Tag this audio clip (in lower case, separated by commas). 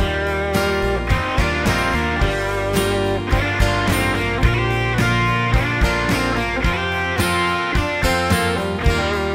acoustic guitar, guitar, plucked string instrument, strum, music, electric guitar, musical instrument